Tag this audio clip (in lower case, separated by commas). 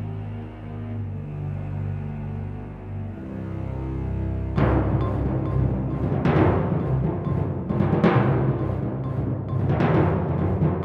timpani, music